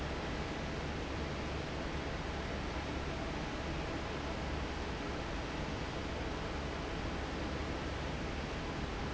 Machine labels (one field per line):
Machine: fan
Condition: normal